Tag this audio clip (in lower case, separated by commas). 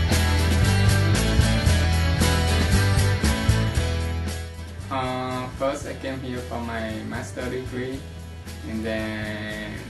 speech, music